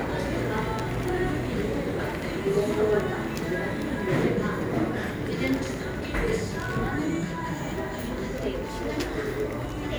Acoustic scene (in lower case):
cafe